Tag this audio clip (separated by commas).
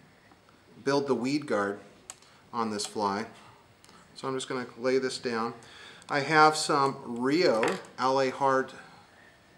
Speech